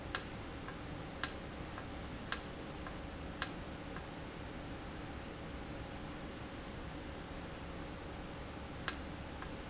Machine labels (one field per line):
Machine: valve